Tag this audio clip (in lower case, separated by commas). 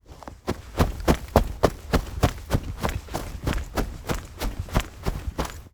run